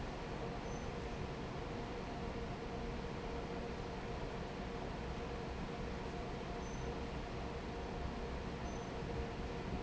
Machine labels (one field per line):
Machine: fan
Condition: normal